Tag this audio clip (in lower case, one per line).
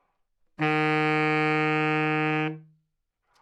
musical instrument
music
wind instrument